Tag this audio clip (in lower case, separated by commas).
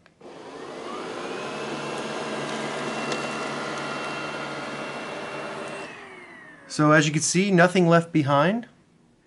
vacuum cleaner cleaning floors